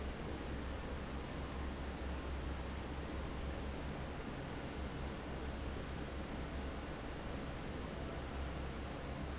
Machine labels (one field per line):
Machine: fan